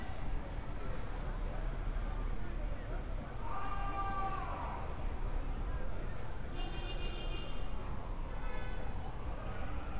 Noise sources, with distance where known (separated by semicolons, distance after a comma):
car horn, far; person or small group shouting, far